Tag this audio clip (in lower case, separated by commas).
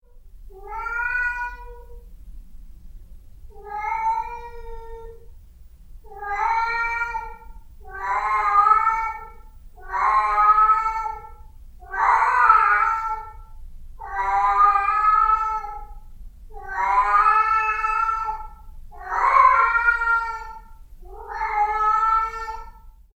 cat, pets, meow, animal